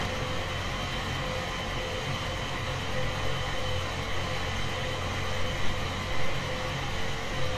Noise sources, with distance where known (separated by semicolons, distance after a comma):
engine of unclear size, near